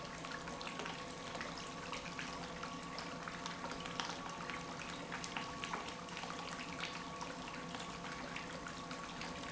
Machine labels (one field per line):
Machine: pump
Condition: normal